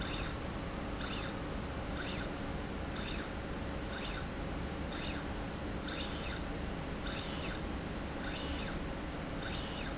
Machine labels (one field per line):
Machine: slide rail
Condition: normal